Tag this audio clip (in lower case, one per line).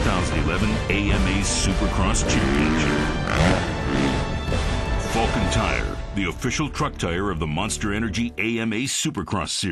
speech
vehicle
music